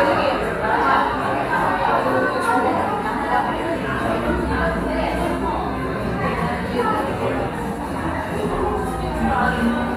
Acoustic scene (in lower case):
cafe